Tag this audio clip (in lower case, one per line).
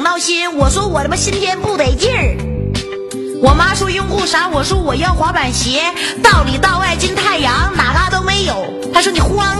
music